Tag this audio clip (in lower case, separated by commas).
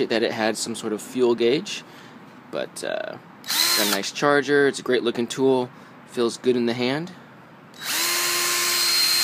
speech, tools